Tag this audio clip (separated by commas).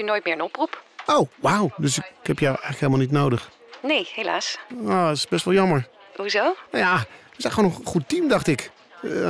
Speech, Radio